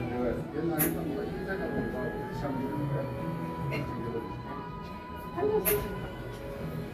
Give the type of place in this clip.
cafe